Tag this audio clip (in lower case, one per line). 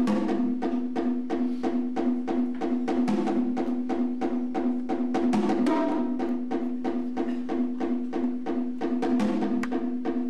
music
percussion